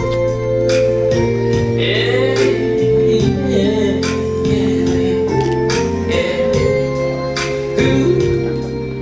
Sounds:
Vocal music

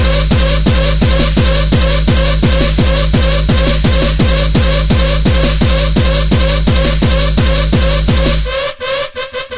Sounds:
Music

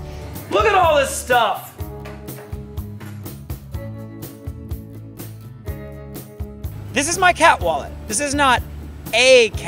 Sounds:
Music, Speech

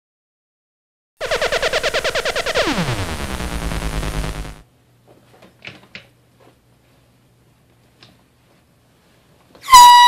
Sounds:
air horn

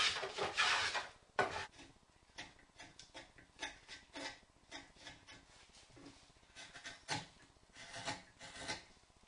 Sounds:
Wood

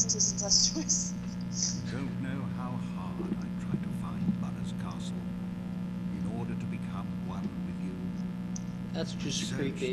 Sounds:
Speech

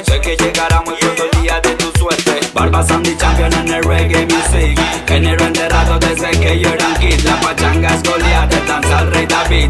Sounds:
Music

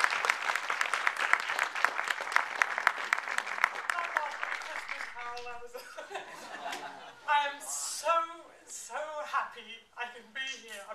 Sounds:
woman speaking, Speech

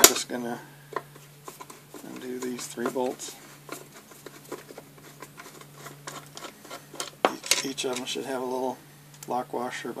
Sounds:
Speech, inside a small room, Tools

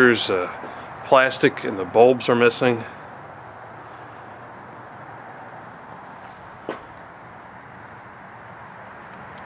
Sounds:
golf driving

